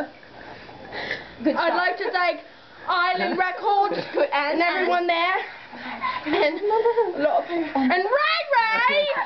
Two females talking loudly and laughing